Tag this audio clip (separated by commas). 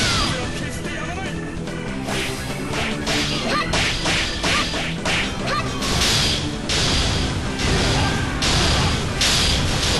Music